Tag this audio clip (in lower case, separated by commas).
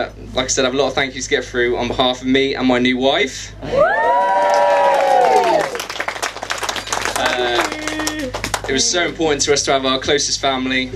male speech, monologue, speech